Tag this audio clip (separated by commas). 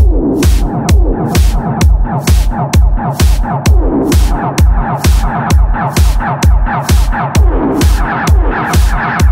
Music